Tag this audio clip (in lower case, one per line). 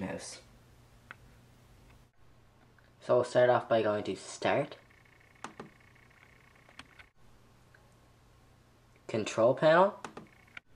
speech